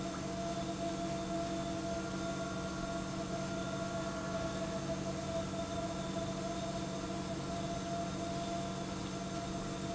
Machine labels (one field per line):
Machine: pump